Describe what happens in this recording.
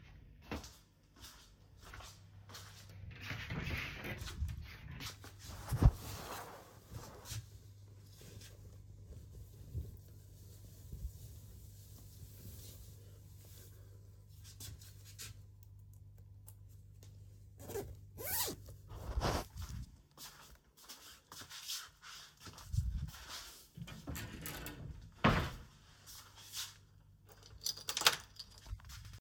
I went to the wardrobe, took a sweatshirt, zipped it up, closed the wardrobe, locked the door with my keys/keychain.